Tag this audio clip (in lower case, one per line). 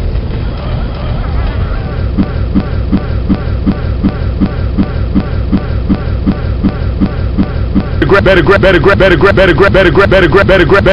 clatter